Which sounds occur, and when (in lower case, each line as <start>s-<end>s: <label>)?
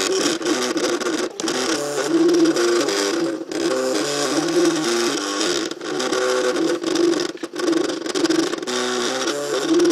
0.0s-9.9s: printer